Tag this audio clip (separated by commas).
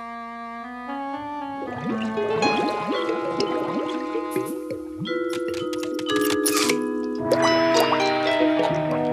Brass instrument